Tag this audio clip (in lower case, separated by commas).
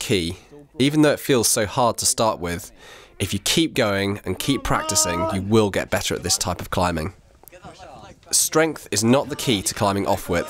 speech